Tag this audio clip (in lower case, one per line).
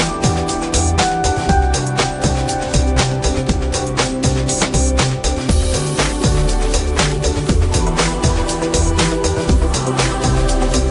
music